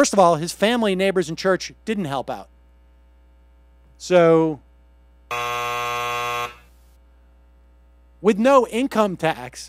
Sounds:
speech, buzzer

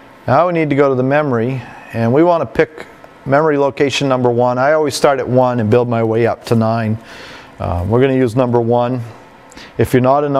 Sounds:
speech

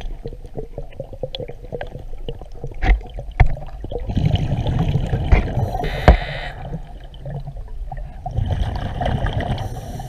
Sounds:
scuba diving

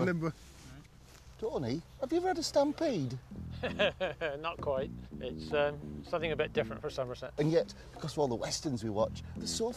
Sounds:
music, speech

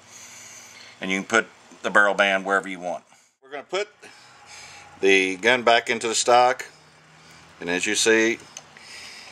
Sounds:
speech, inside a small room

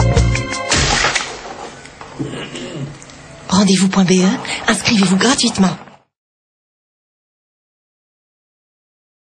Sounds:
speech, music

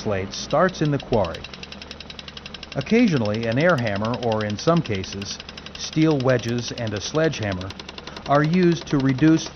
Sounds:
speech, jackhammer, outside, rural or natural

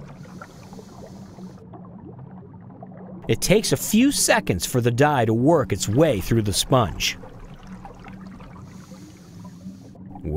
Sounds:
pumping water

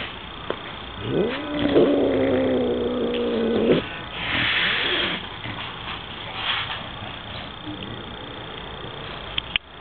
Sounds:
animal, domestic animals

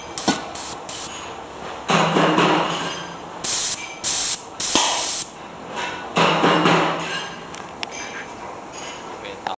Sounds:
spray, speech

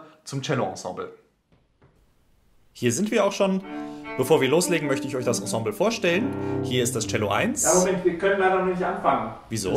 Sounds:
cello, speech, music

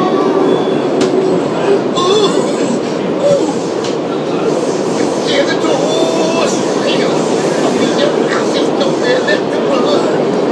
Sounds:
male singing, vehicle, train, rail transport

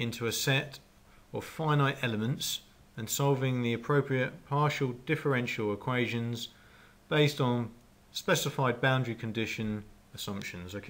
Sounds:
speech

